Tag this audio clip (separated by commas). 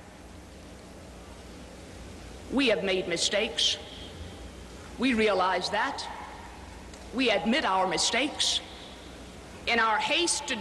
Speech, Narration, woman speaking